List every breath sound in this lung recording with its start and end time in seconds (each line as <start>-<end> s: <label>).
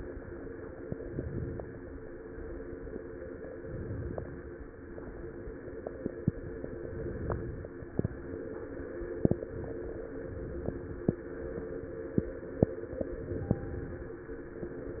0.88-1.84 s: inhalation
1.84-3.52 s: exhalation
3.56-4.52 s: inhalation
4.54-6.73 s: exhalation
6.81-7.77 s: inhalation
7.81-10.15 s: exhalation
10.23-11.19 s: inhalation
11.23-12.99 s: exhalation
13.10-14.06 s: inhalation
14.08-15.00 s: exhalation